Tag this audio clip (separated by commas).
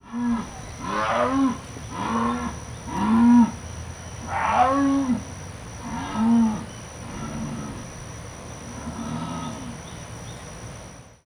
Cricket, Growling, Wild animals, Insect, Animal